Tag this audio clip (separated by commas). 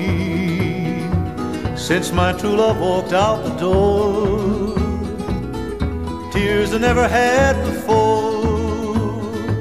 Singing, Mandolin, Flamenco